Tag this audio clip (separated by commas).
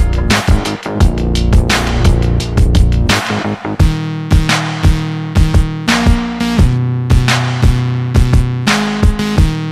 Music, Sampler, Electronica, Drum machine